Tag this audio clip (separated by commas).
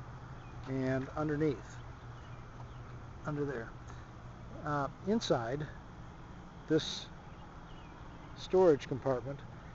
Speech